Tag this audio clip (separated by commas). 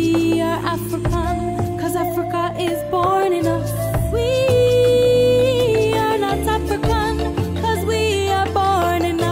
inside a large room or hall, outside, rural or natural, Music